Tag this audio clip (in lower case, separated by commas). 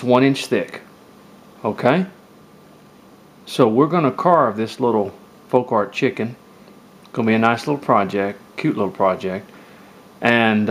speech